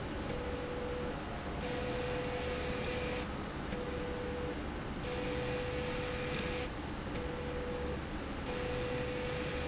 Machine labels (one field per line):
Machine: slide rail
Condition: abnormal